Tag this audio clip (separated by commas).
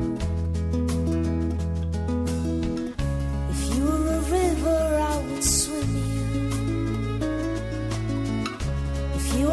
Music